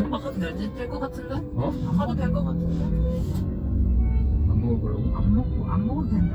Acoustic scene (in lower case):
car